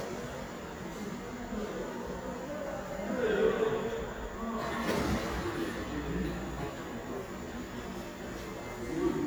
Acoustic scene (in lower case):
subway station